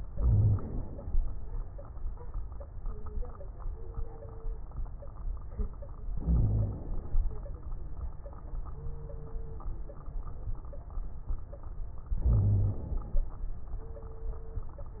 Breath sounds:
Inhalation: 0.08-1.16 s, 6.14-7.24 s, 12.15-13.25 s
Wheeze: 0.14-0.57 s, 6.19-6.75 s, 12.28-12.82 s

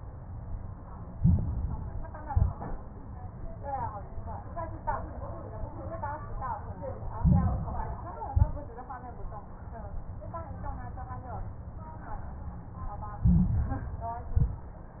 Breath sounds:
Inhalation: 1.08-2.24 s, 7.14-8.30 s, 13.19-14.35 s
Exhalation: 2.24-2.89 s, 8.32-8.97 s, 14.35-15.00 s
Crackles: 1.08-2.24 s, 2.24-2.89 s, 7.14-8.30 s, 8.32-8.97 s, 13.19-14.35 s, 14.35-15.00 s

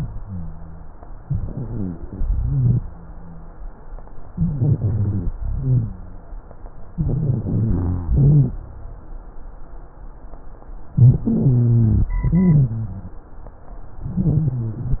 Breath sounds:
Inhalation: 1.27-2.03 s, 4.33-5.26 s, 6.92-8.08 s, 10.97-12.12 s, 14.04-15.00 s
Exhalation: 2.09-2.85 s, 5.46-5.98 s, 8.14-8.58 s, 12.24-13.21 s
Rhonchi: 0.00-0.97 s, 1.27-2.03 s, 2.09-2.85 s, 4.33-5.26 s, 5.46-5.98 s, 6.92-8.08 s, 8.14-8.58 s, 10.97-12.12 s, 12.24-13.21 s, 14.04-15.00 s

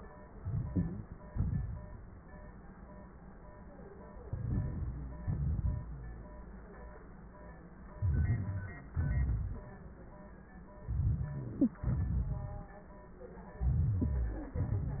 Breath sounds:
Inhalation: 0.34-1.14 s, 4.25-5.26 s, 7.95-8.92 s, 10.84-11.80 s, 13.61-14.59 s
Exhalation: 1.33-2.24 s, 5.26-6.26 s, 8.96-9.96 s, 11.80-12.90 s
Wheeze: 0.74-1.04 s, 4.94-5.33 s, 11.59-11.71 s

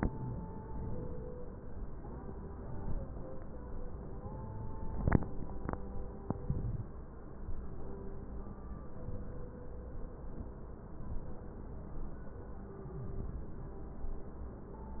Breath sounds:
Inhalation: 0.70-1.40 s, 2.54-3.25 s, 4.31-5.01 s, 6.25-6.95 s, 8.93-9.63 s, 13.07-13.78 s

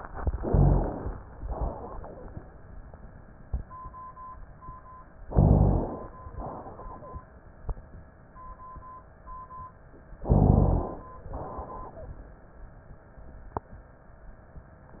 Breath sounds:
Inhalation: 0.34-1.18 s, 5.26-6.09 s, 10.27-11.10 s
Exhalation: 1.50-2.34 s, 6.34-7.17 s, 11.31-12.14 s
Rhonchi: 0.42-1.06 s, 5.29-5.94 s, 10.28-10.93 s

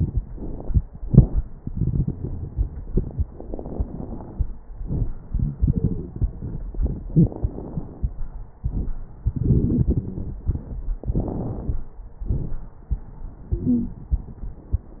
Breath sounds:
Inhalation: 0.00-0.81 s, 3.33-4.56 s, 7.10-8.07 s, 11.03-11.94 s
Exhalation: 1.07-1.42 s, 4.87-5.17 s, 8.62-8.97 s, 12.24-12.74 s
Wheeze: 13.66-14.01 s
Crackles: 0.00-0.81 s, 1.07-1.42 s, 3.33-4.56 s, 4.87-5.17 s, 7.10-8.07 s, 8.62-8.97 s, 11.03-11.94 s, 12.24-12.74 s

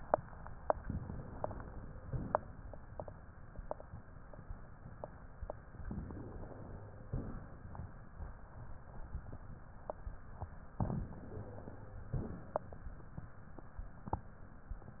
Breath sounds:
Inhalation: 0.78-1.92 s, 5.88-7.06 s, 10.78-12.09 s
Exhalation: 1.92-2.66 s, 7.06-7.88 s, 12.09-12.94 s

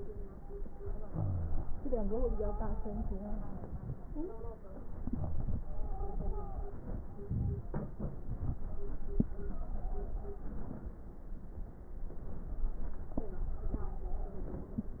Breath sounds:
Inhalation: 7.23-7.72 s
Wheeze: 0.99-1.68 s
Stridor: 4.03-4.67 s, 5.57-6.79 s, 9.42-10.20 s, 13.23-14.79 s
Crackles: 7.23-7.72 s

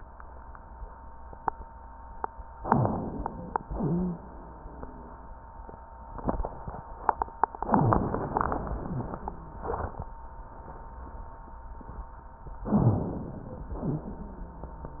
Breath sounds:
Inhalation: 2.60-3.63 s, 7.72-9.20 s, 12.69-13.72 s
Exhalation: 13.78-14.23 s
Wheeze: 3.70-4.23 s, 7.72-8.26 s, 12.69-13.07 s, 13.78-14.23 s

